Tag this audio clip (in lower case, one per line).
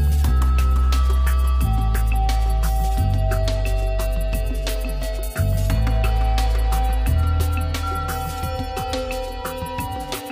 music